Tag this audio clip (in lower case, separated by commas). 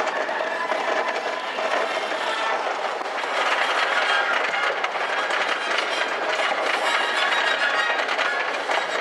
music